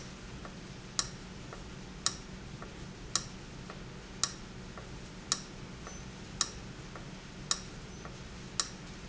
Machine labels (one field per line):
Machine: valve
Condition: abnormal